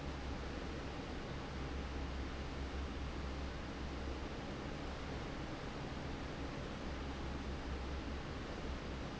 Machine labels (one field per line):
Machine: fan